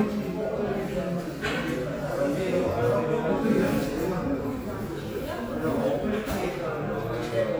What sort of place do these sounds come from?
crowded indoor space